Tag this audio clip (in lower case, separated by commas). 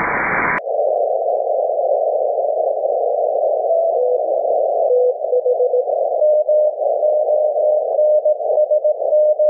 dial tone